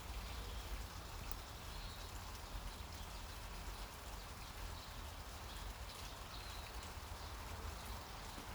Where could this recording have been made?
in a park